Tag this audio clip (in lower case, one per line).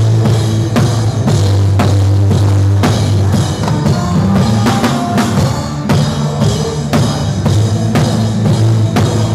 singing
drum kit
percussion
drum
music
musical instrument